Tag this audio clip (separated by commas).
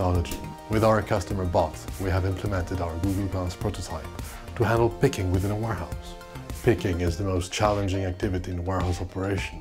Speech, Music